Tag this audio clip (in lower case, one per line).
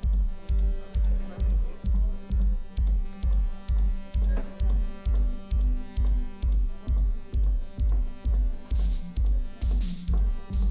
music
speech